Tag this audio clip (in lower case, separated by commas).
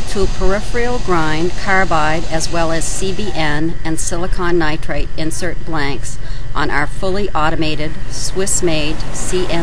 speech